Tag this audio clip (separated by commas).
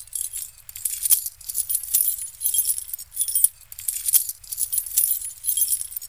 home sounds, Keys jangling